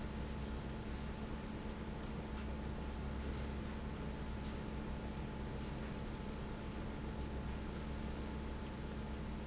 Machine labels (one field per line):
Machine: fan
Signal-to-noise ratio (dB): 0 dB